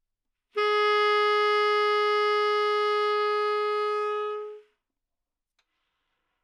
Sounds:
Music, Musical instrument, Wind instrument

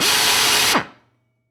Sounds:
Drill, Tools, Power tool

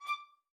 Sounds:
Music, Bowed string instrument, Musical instrument

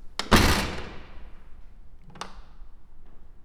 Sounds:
Slam, Door, Domestic sounds

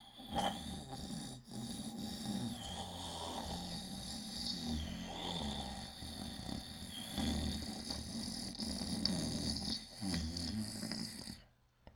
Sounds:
Breathing, Respiratory sounds

